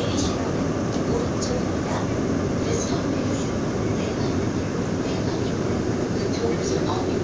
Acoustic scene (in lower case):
subway train